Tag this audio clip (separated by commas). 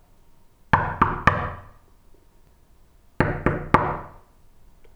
Knock, home sounds, Door